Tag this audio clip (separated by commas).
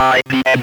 Speech, Human voice